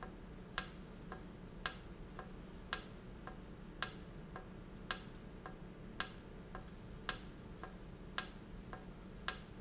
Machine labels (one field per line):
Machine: valve